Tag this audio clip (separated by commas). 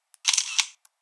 Mechanisms, Camera